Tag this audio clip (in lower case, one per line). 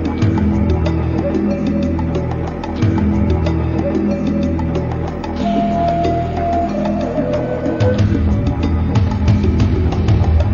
music